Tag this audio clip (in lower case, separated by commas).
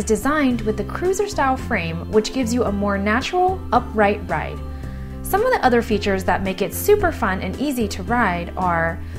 speech, music